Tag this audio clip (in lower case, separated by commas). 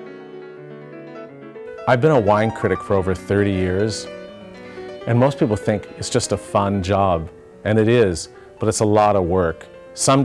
music, speech